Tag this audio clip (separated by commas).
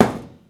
thud